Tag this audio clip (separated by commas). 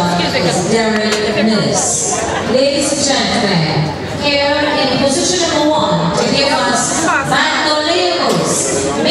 Speech